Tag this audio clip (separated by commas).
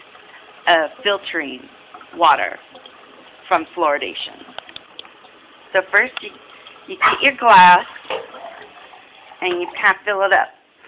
Speech